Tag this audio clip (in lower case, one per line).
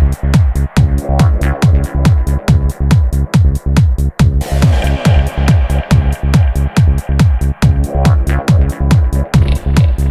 music